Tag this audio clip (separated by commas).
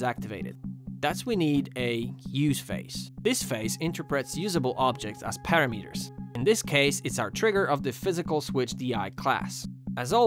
Music, Speech